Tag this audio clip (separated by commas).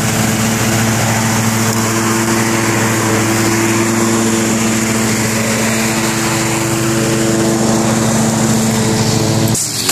Lawn mower, lawn mowing